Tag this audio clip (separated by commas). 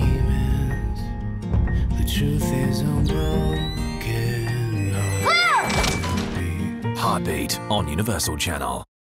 Music, Speech